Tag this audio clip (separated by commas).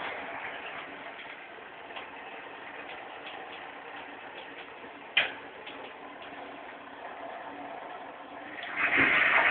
Gurgling